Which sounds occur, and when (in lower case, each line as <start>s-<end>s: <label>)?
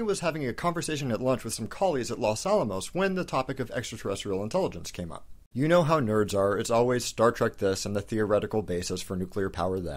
0.0s-5.2s: man speaking
0.0s-5.5s: background noise
5.5s-9.9s: man speaking
5.5s-9.9s: background noise